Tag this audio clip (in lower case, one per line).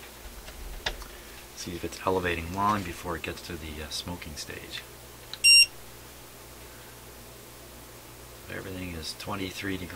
bleep